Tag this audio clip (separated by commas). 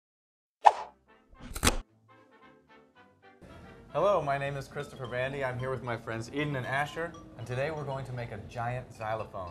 Speech, Music, Marimba